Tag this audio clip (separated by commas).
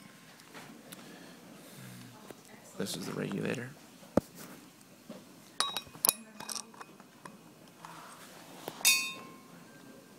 Speech